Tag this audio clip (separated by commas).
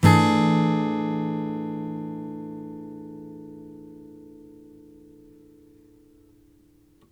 Acoustic guitar, Music, Strum, Guitar, Musical instrument, Plucked string instrument